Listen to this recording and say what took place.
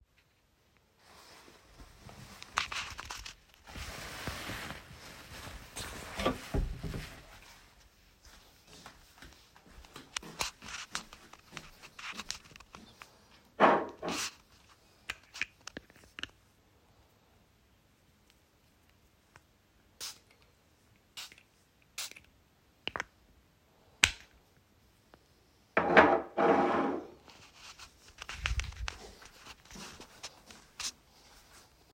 I walked to the window, opened it and then closed it again.